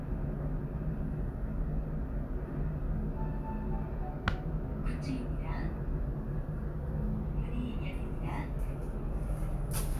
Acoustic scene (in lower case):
elevator